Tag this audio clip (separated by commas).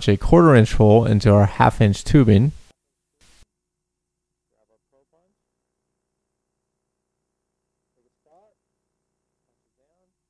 Speech